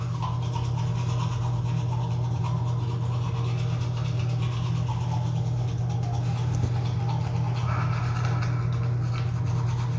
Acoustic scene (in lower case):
restroom